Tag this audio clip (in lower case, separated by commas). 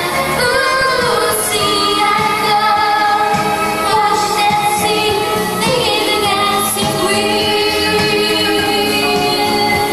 female singing, music